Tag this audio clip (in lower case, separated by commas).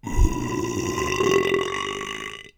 eructation